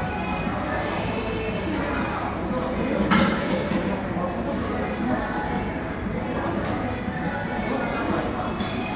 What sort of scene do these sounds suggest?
cafe